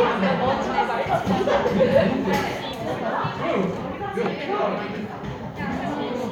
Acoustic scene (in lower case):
crowded indoor space